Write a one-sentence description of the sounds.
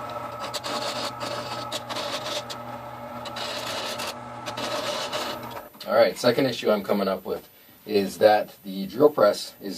Mechanical humming with dry scraping followed by a man speaking